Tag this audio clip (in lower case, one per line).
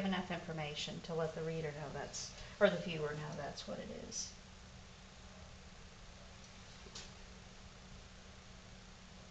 speech